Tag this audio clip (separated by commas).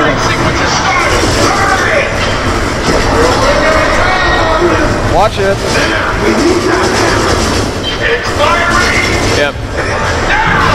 Speech